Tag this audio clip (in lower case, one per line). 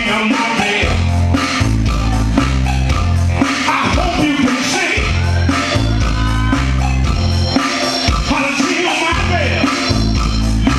music